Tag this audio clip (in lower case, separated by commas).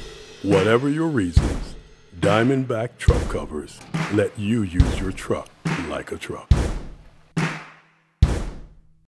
music, speech